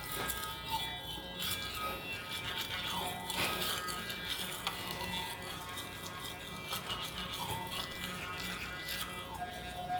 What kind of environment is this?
restroom